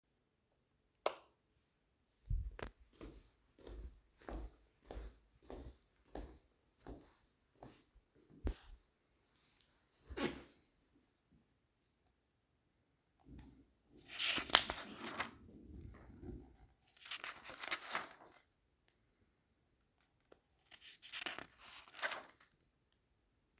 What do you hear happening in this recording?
I flipped the light switch, walked to the couch, sat down and started to read a magazine